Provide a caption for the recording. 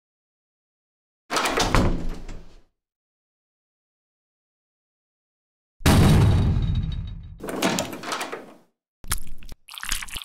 A door is closed and the door is banged on